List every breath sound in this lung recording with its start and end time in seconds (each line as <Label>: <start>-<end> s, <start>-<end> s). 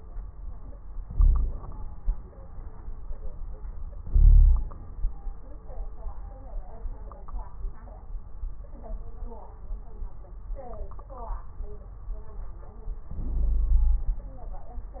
Inhalation: 1.06-1.84 s, 4.04-4.74 s, 13.08-14.43 s
Wheeze: 1.06-1.83 s, 4.04-4.74 s, 13.08-14.43 s